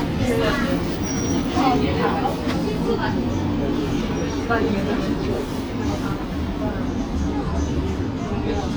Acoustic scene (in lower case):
bus